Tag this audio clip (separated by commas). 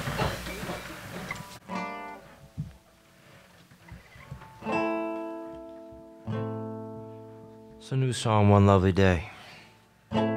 Mandolin